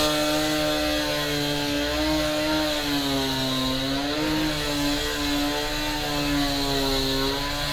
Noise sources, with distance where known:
chainsaw, near

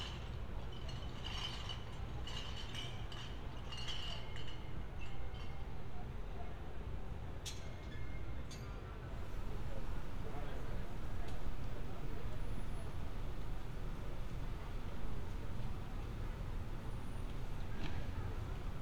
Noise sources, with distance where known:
background noise

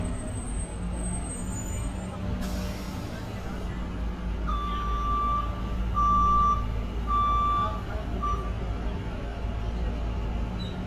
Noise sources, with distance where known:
medium-sounding engine, near; large-sounding engine, near; reverse beeper, near; unidentified human voice

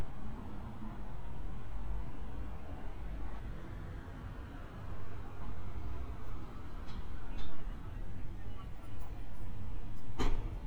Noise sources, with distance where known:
unidentified human voice

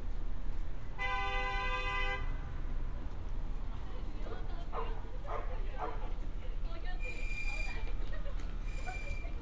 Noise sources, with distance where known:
car horn, near; person or small group talking; dog barking or whining

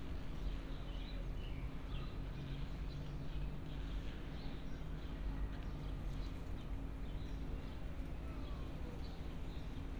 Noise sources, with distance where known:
background noise

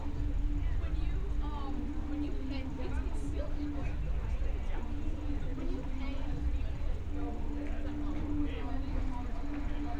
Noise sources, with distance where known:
person or small group talking

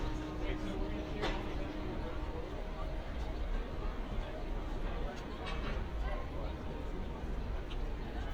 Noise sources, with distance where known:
person or small group talking, near

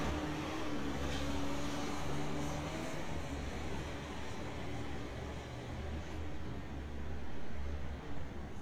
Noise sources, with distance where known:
small-sounding engine

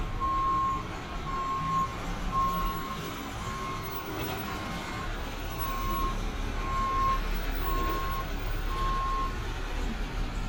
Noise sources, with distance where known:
large-sounding engine, near; reverse beeper, near

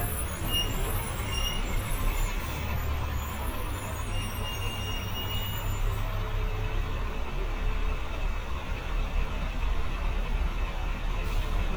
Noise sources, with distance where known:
large-sounding engine, near

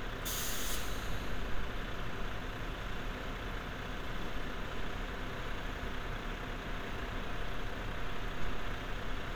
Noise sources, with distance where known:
large-sounding engine, far

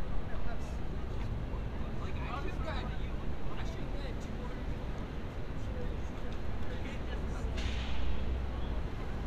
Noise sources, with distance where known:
person or small group talking, near

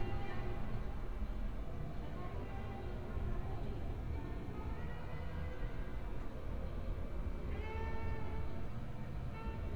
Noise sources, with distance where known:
music from a fixed source, far

